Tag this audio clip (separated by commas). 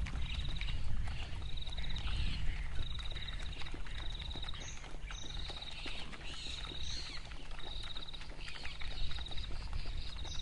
Animal